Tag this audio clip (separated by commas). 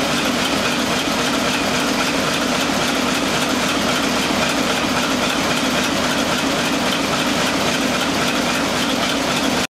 Heavy engine (low frequency), Engine